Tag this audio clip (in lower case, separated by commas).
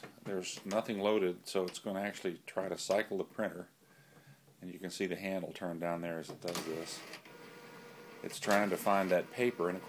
speech, inside a small room, printer